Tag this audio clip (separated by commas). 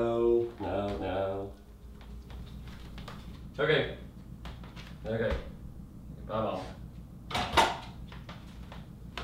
Speech